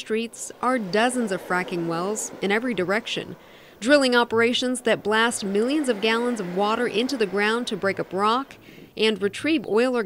Woman speaks with gurgling water in the background